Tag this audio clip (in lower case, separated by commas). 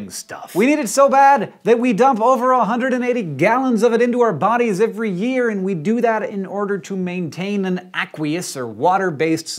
speech